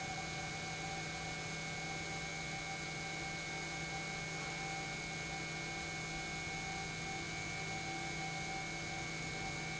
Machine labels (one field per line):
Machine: pump